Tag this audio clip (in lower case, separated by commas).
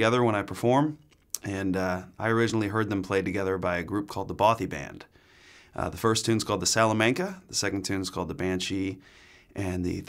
speech